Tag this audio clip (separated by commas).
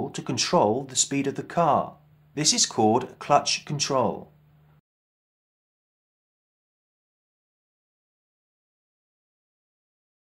Speech